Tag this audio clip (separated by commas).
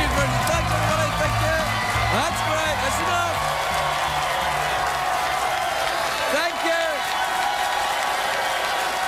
Speech, monologue, Music